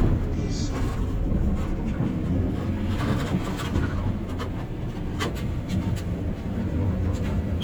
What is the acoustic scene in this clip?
bus